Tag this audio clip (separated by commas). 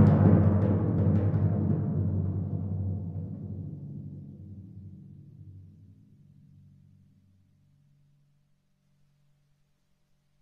Timpani, Percussion, Musical instrument, Music